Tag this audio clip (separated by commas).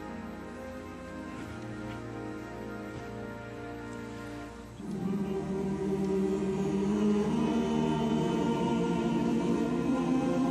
Choir, Male singing, Music